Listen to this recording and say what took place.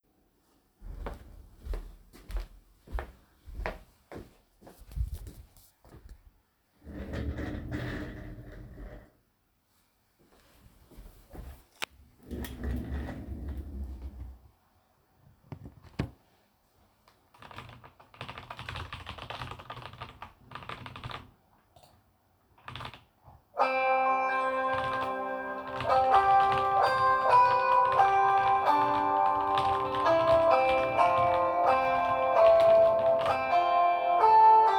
I walk to the desk with the phone in my hands, grab the chair, move the chair away from the table, sit down down, move myself closer to the table, put the phone down on the table and start typing on the keyboard, after some time typing phone starts ringing and the two events take place simultaneously until the end.